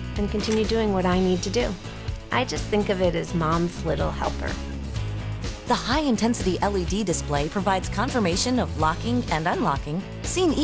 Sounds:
door, speech, music

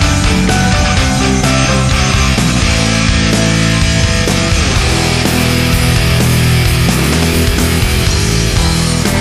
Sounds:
music

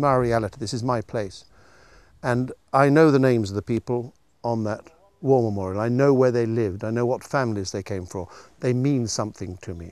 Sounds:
speech

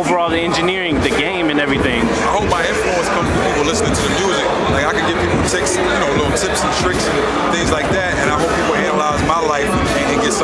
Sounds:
speech, electronica, music

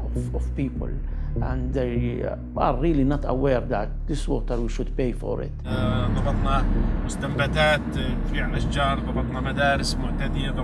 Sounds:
speech

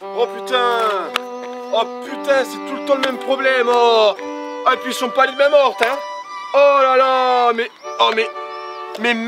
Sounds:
speech, music

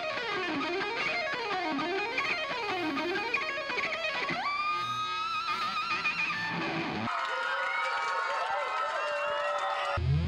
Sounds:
guitar, strum, plucked string instrument, musical instrument, music

